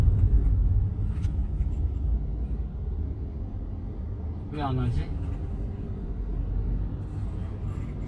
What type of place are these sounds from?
car